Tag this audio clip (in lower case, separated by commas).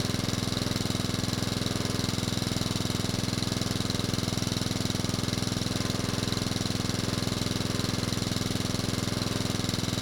engine